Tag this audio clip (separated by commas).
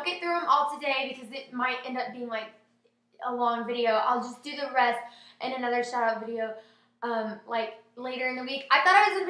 Speech